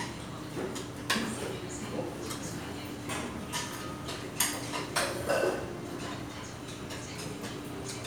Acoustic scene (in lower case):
restaurant